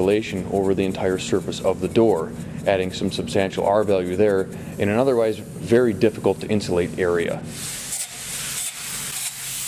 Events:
0.0s-2.2s: man speaking
0.0s-7.5s: mechanisms
0.0s-9.6s: spray
2.3s-2.6s: breathing
2.6s-4.4s: man speaking
4.5s-4.7s: breathing
4.8s-5.4s: man speaking
5.7s-7.4s: man speaking

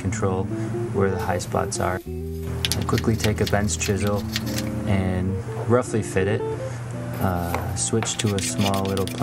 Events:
0.0s-0.4s: man speaking
0.0s-9.2s: mechanisms
0.0s-9.2s: music
0.4s-1.0s: surface contact
0.9s-2.0s: man speaking
2.6s-3.0s: generic impact sounds
2.9s-4.2s: man speaking
3.1s-3.2s: generic impact sounds
3.4s-3.5s: generic impact sounds
3.6s-4.6s: filing (rasp)
4.8s-5.2s: man speaking
5.3s-5.8s: surface contact
5.7s-6.4s: man speaking
6.3s-6.8s: surface contact
6.9s-6.9s: tick
7.1s-7.5s: surface contact
7.2s-7.6s: human voice
7.5s-7.6s: generic impact sounds
7.7s-9.2s: man speaking
8.0s-8.1s: generic impact sounds
8.0s-9.2s: filing (rasp)

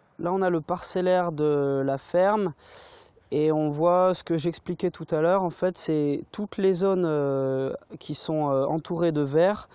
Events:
0.0s-0.2s: brief tone
0.0s-9.7s: wind
0.1s-2.6s: man speaking
2.6s-3.1s: breathing
3.3s-7.8s: man speaking
7.9s-9.7s: man speaking

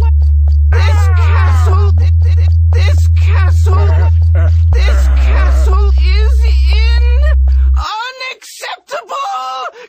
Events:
0.0s-0.1s: sound effect
0.0s-7.7s: music
0.2s-0.3s: sound effect
0.4s-0.5s: sound effect
0.7s-1.9s: human voice
0.7s-2.1s: male speech
1.9s-2.1s: sound effect
2.2s-2.6s: sound effect
2.7s-3.8s: male speech
3.6s-4.1s: human voice
4.3s-4.5s: human voice
4.7s-5.6s: human voice
4.7s-7.3s: male speech
7.5s-7.8s: breathing
7.7s-9.8s: background noise
7.7s-9.7s: male speech
9.7s-9.8s: breathing

